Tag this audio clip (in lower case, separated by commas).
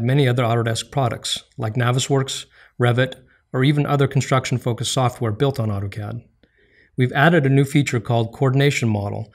speech